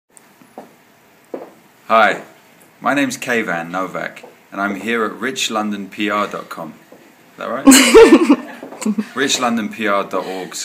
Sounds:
Chuckle, Speech, Laughter

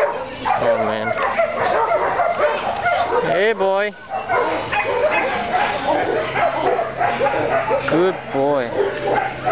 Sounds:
Whimper (dog), Dog, pets, Speech, Animal, Yip, Bow-wow

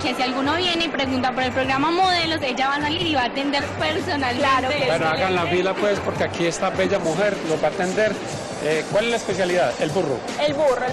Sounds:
Speech, Music

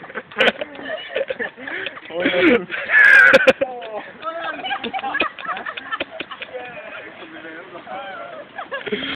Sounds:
Speech

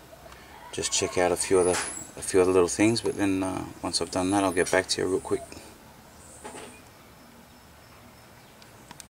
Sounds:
Speech

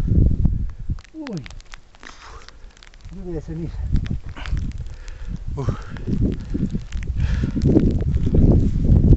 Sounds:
Eruption, Speech

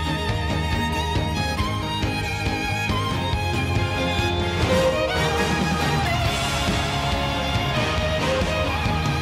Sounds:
Music

